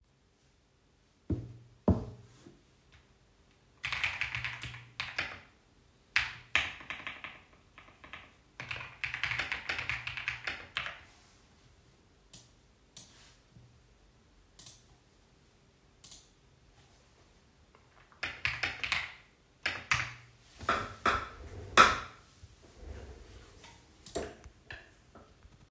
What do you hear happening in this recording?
I was sitting on my chair, knocked on the desk a couple of times. Then I was typing on my keyboard and I used my mouse as well. Finally, I moved a bit with the chair to get more comfortable.